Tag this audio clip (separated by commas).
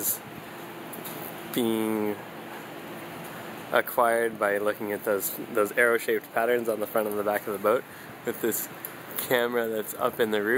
Speech